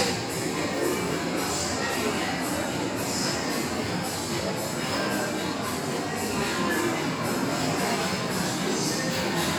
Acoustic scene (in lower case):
restaurant